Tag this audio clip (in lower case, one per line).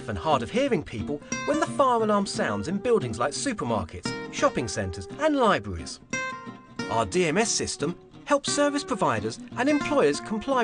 speech
music